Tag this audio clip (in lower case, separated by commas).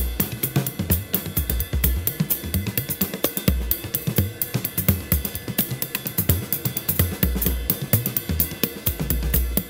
playing cymbal, cymbal, hi-hat